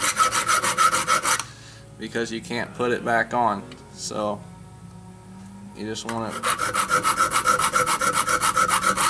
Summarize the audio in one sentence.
Filing and a man speaking in the background